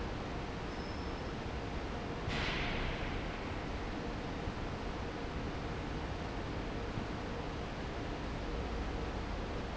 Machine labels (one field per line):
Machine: fan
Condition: normal